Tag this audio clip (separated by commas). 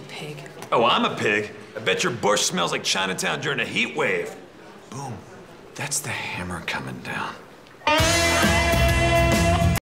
Music, Speech